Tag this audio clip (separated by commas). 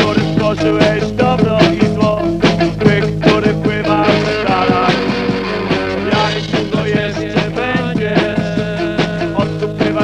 Music